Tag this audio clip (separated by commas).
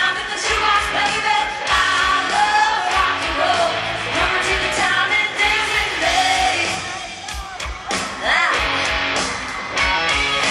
Rock and roll, Music